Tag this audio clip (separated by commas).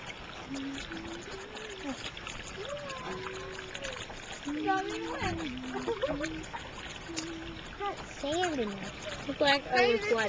Stream